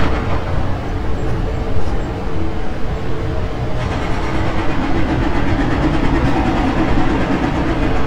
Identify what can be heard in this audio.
unidentified impact machinery